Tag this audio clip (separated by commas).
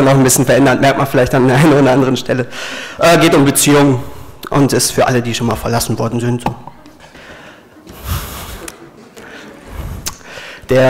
Speech